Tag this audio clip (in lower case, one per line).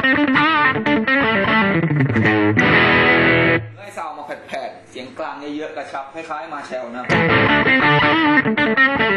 speech
music